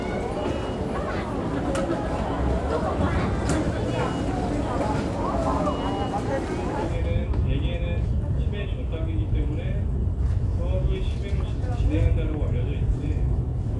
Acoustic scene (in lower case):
crowded indoor space